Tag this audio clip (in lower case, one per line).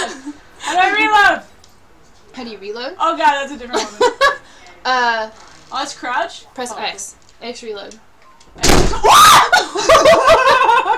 speech